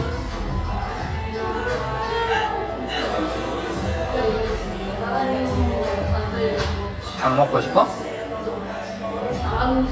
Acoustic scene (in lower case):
cafe